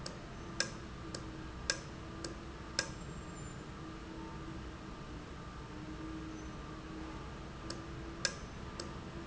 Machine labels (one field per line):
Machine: valve